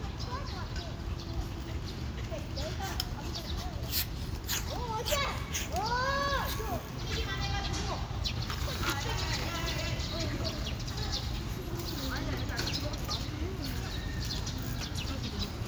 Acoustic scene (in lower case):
park